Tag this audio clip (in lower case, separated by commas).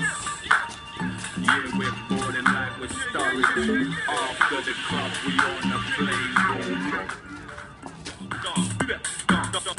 music, shuffle